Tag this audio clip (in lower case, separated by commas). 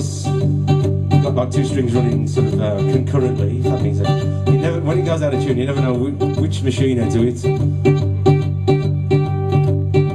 speech, guitar, mandolin, music, plucked string instrument, musical instrument